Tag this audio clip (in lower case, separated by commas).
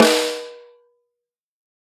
snare drum, music, percussion, drum, musical instrument